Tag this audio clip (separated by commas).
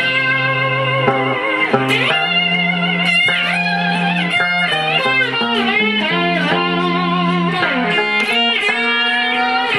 Steel guitar, Musical instrument, Bowed string instrument, Tapping (guitar technique), playing electric guitar, Electric guitar, Guitar, Plucked string instrument, Music